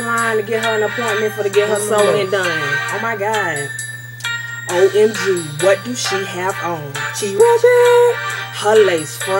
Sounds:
music
speech

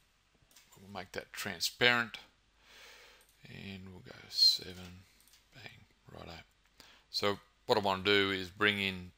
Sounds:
speech

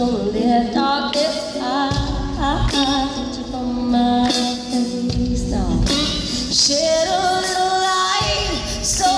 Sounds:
plucked string instrument
electric guitar
guitar
music
musical instrument

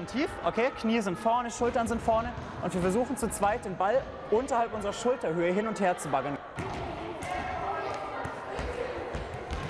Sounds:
playing volleyball

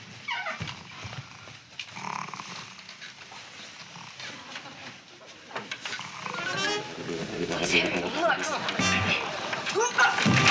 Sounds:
speech
inside a small room
music

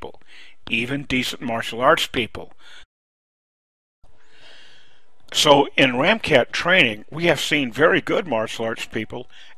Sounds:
speech

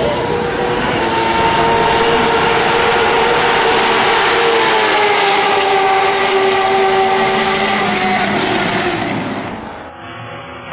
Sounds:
motor vehicle (road)
vehicle
car passing by
car

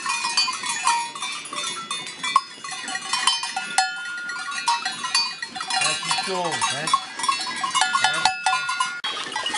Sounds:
speech

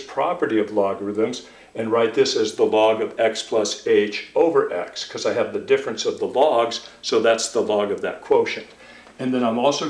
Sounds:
speech
inside a small room

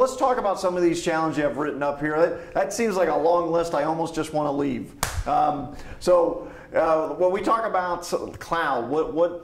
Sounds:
speech

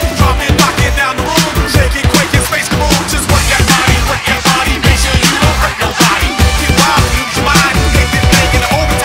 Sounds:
music

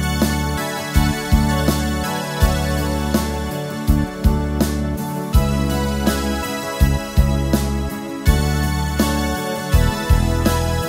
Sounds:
music

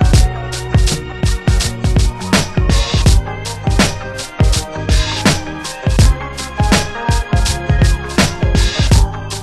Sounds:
hip hop music

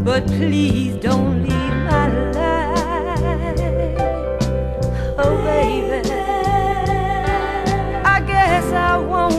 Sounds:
soul music
music

